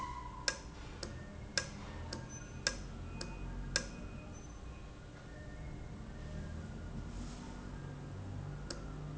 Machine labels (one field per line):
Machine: valve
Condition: normal